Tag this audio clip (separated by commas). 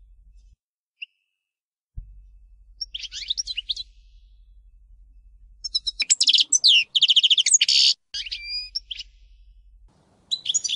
Bird, Bird vocalization